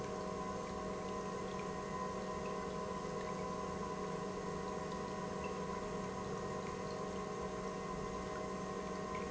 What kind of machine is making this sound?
pump